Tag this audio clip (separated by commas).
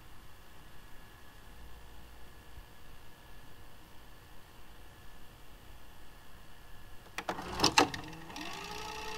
inside a small room, Silence